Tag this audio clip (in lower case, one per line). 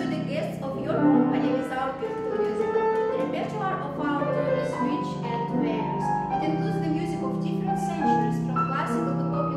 speech
musical instrument
music